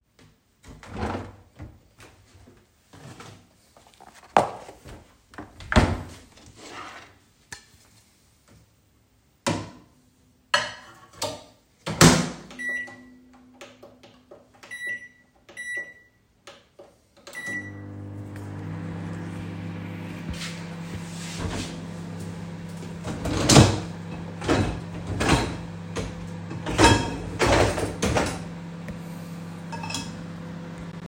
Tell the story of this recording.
I opened the fridge and took food out, closed it. I opened the microwave and put the food and closed it, started it, and then I began to unload the dischwasher